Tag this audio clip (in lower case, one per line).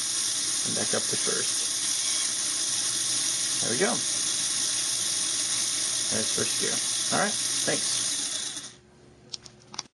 engine
speech